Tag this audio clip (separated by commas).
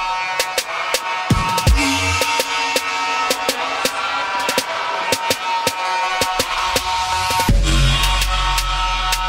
Music